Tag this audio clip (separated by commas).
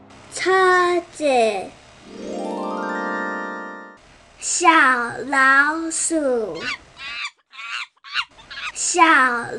Bird, Speech